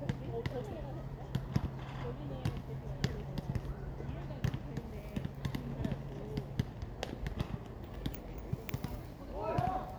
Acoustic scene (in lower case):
park